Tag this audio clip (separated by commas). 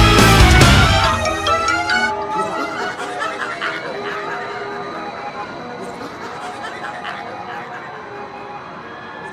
Laughter